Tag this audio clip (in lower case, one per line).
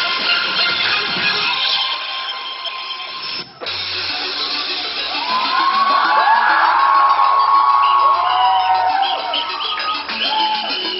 music
electronic music